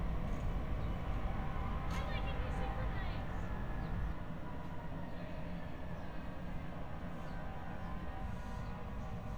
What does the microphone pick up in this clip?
person or small group shouting